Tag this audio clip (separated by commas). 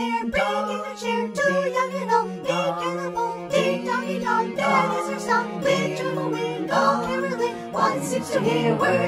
Music for children, Music, Choir